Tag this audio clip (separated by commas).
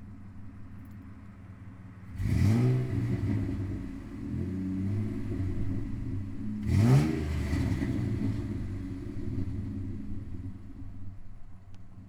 Accelerating, Car, Motor vehicle (road), Vehicle, Engine, Idling